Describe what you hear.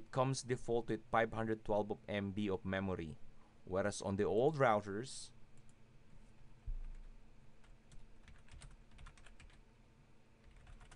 Male speaking, mouse clicking and typing on a keyboard